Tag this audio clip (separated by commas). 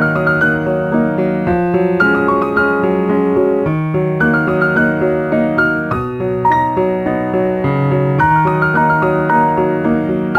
Music